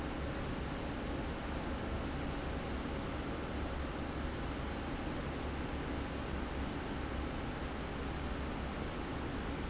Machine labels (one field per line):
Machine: fan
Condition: normal